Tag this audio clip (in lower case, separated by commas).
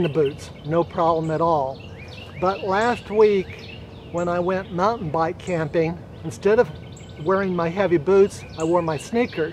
speech